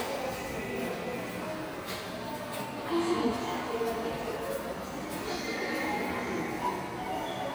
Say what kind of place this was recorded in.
subway station